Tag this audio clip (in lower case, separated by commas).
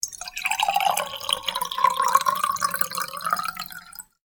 water, fill (with liquid), liquid